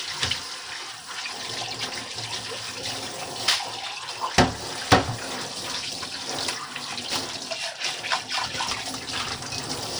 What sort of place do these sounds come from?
kitchen